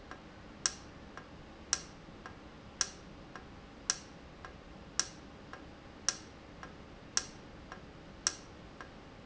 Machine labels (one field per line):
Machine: valve